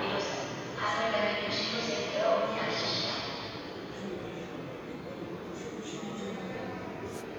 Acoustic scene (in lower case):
subway station